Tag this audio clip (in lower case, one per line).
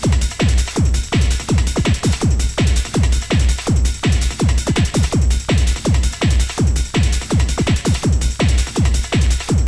music
techno